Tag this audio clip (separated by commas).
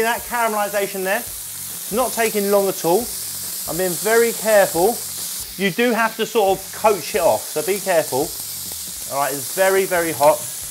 inside a small room, Speech